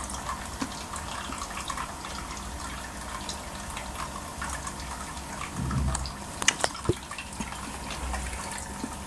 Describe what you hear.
Water running and dripping then a boom in background